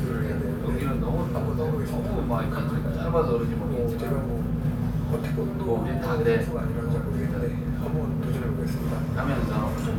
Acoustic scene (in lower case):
crowded indoor space